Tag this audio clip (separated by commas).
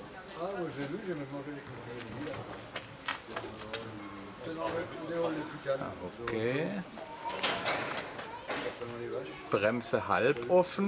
Speech